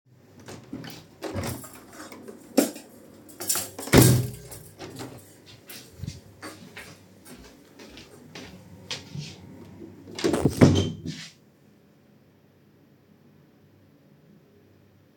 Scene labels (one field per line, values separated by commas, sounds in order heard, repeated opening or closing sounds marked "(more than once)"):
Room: living room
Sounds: window, footsteps, door